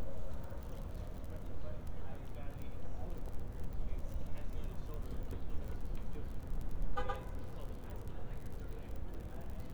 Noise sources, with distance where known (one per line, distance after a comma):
car horn
person or small group talking, far